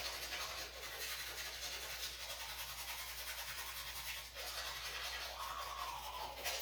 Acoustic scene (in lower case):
restroom